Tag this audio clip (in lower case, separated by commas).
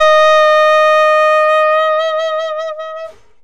musical instrument, music, woodwind instrument